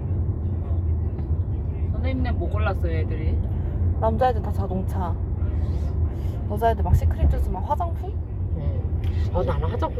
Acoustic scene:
car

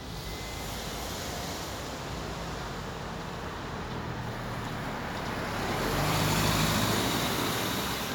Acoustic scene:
street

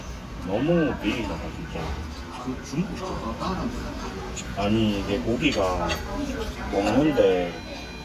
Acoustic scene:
restaurant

